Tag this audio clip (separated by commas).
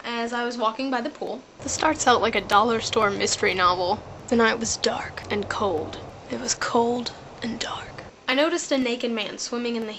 Speech